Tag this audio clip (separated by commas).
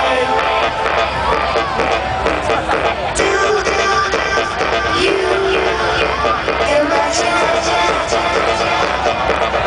Music, Exciting music